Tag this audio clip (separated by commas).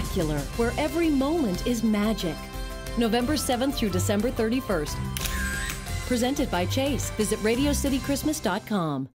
Speech, Music